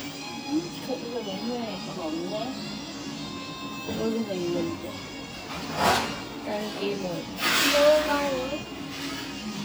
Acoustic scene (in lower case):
restaurant